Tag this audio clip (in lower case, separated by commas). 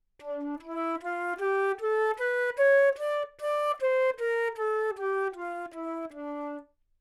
musical instrument, music, wind instrument